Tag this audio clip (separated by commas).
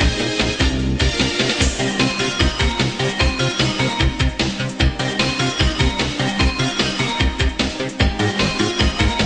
Music